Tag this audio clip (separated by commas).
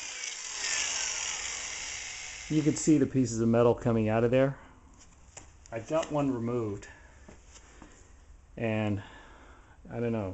Drill, Speech